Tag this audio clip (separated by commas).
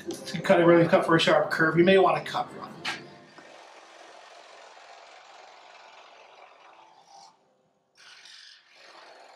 Sawing, Wood